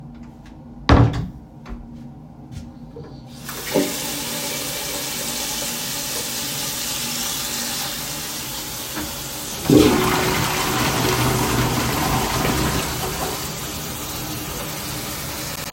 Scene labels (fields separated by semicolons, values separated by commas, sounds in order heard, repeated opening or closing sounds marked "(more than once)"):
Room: lavatory; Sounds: door, footsteps, running water, toilet flushing